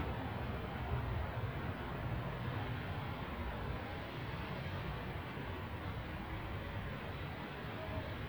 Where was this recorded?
in a residential area